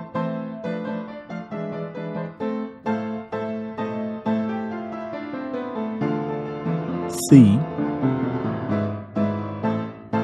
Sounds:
music
speech

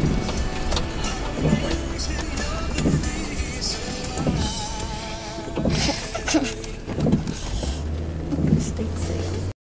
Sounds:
vehicle
music
speech

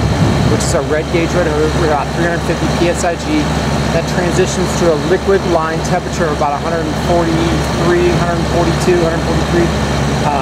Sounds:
speech

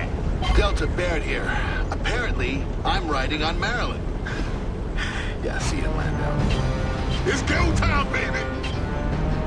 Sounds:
speech
music
vehicle

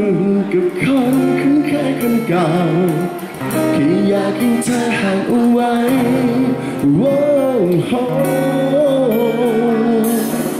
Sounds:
music

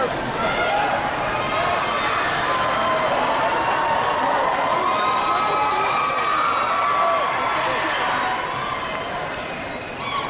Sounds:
speech

